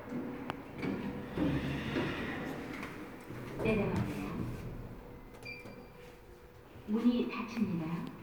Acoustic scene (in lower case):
elevator